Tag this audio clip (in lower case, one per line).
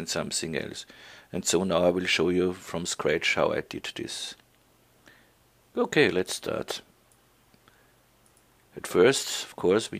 speech